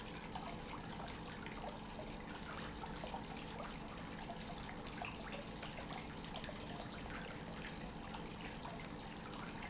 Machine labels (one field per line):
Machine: pump